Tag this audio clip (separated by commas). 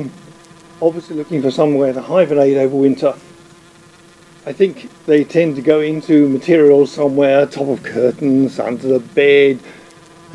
Insect, bee or wasp, Fly